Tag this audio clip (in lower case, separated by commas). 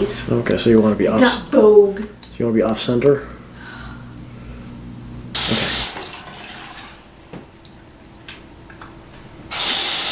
sink (filling or washing), water, faucet